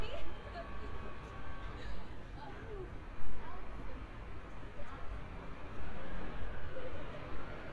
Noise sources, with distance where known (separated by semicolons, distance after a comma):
background noise